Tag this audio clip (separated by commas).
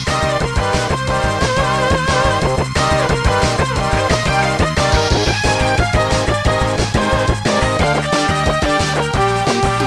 Music